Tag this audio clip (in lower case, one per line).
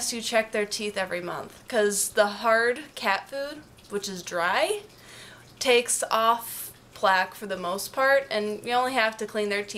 speech